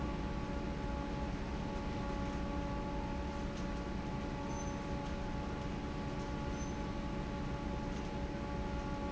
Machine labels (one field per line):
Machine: fan